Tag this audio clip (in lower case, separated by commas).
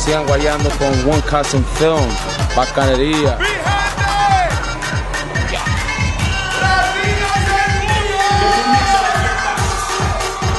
music, speech, disco